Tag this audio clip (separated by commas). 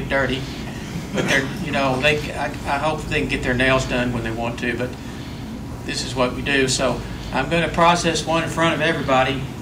Speech